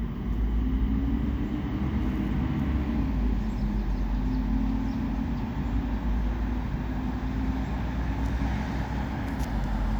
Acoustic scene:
street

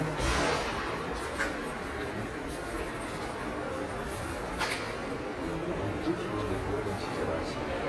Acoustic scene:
subway station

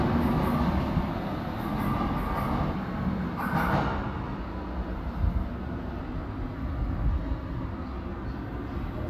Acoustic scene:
subway station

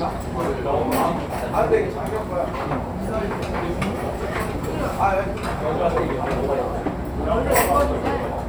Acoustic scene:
restaurant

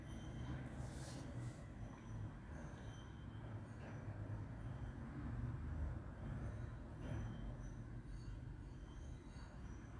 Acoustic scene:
street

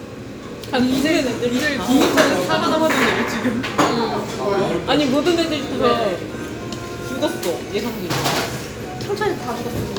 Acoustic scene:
restaurant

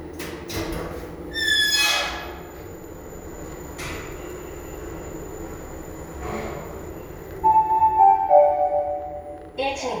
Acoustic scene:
elevator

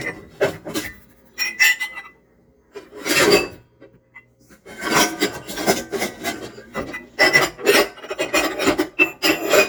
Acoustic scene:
kitchen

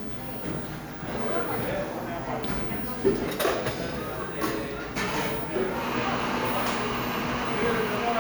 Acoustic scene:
cafe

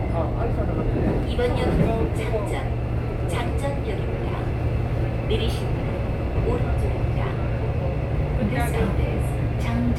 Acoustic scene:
subway train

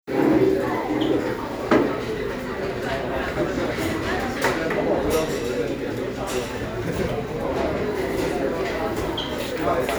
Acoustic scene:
crowded indoor space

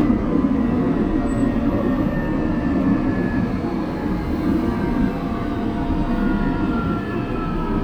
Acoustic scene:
subway train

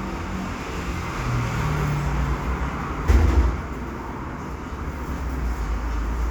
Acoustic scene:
cafe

